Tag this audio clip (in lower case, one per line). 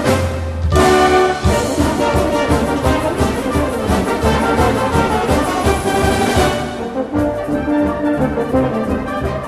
music